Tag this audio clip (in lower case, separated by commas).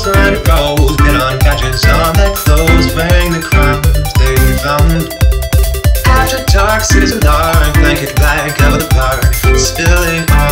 music